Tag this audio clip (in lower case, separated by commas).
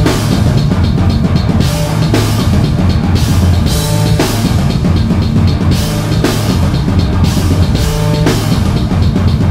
rock music, playing drum kit, cymbal, drum kit, heavy metal, bass drum, musical instrument, drum, percussion, music